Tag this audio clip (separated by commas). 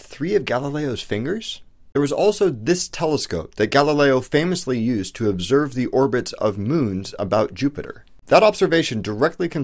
Speech